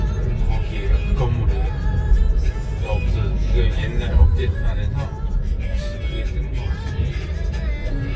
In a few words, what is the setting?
car